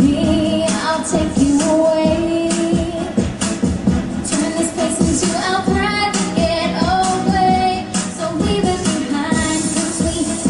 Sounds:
music
child singing

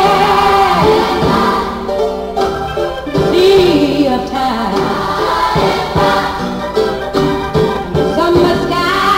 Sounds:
music
choir

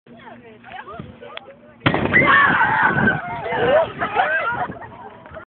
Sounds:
pop
speech

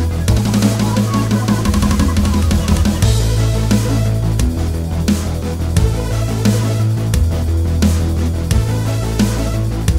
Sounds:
music
electronic music

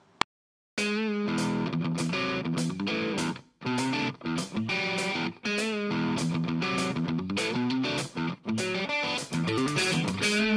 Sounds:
musical instrument
plucked string instrument
music
guitar

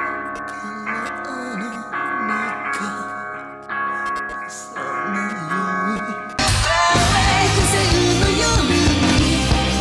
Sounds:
music

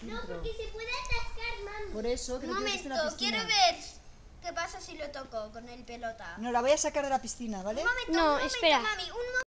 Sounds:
speech

